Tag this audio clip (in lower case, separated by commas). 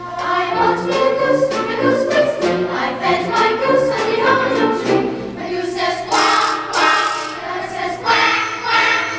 music